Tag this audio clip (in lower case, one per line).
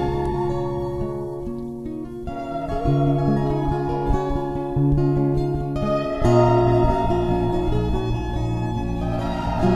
music